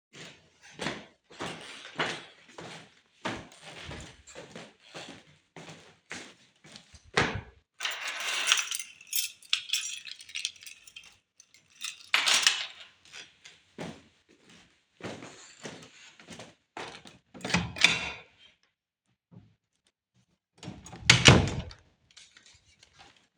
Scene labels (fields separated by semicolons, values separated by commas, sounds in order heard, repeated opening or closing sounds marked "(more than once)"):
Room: hallway; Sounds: footsteps, keys, door (more than once)